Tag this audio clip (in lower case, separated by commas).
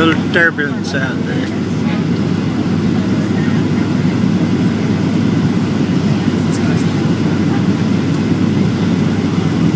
speech